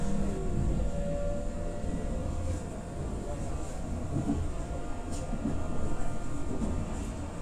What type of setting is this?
subway train